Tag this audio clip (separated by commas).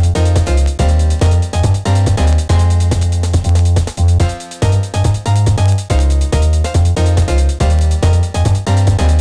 Video game music, Background music, Music